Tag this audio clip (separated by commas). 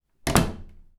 Slam, Door, Domestic sounds